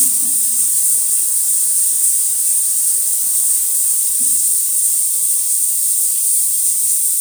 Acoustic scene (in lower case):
restroom